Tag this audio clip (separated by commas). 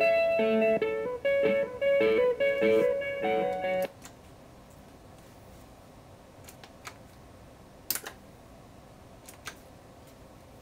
Musical instrument, Electric guitar, Music, Plucked string instrument, Strum, Guitar